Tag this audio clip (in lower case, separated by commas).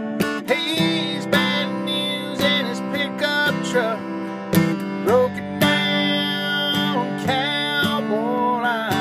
music